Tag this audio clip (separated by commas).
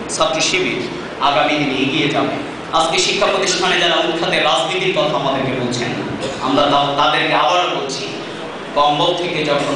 Male speech, monologue, Speech